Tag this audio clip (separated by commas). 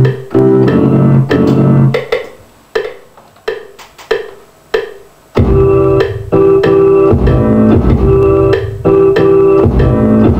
Music